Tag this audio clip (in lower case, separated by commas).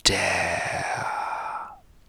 whispering, human voice